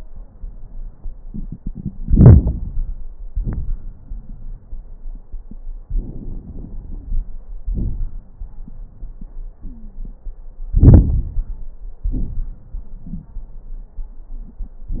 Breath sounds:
Inhalation: 2.03-3.04 s, 5.85-7.25 s, 10.75-11.68 s
Exhalation: 3.27-3.83 s, 7.68-8.27 s, 12.05-12.69 s
Wheeze: 9.64-10.16 s, 13.07-13.30 s
Crackles: 2.03-3.04 s, 3.27-3.83 s, 5.85-7.25 s, 7.68-8.27 s, 10.75-11.68 s, 12.05-12.69 s

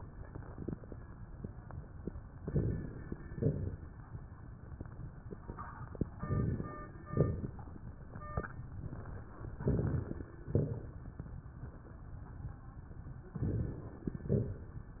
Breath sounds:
Inhalation: 2.35-3.08 s, 6.11-6.83 s, 9.56-10.32 s, 13.38-14.13 s
Exhalation: 3.23-3.95 s, 7.04-7.59 s, 10.46-11.02 s, 14.18-14.76 s
Crackles: 2.35-3.08 s, 3.23-3.95 s, 6.11-6.83 s, 7.04-7.59 s, 9.56-10.32 s, 10.46-11.02 s, 13.38-14.13 s, 14.18-14.76 s

